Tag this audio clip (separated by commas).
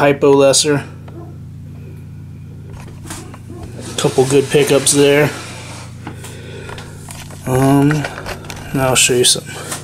Cupboard open or close, Speech